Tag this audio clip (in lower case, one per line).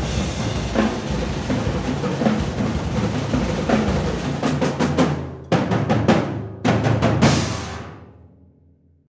music